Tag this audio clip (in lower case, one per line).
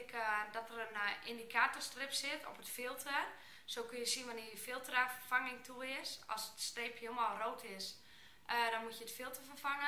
speech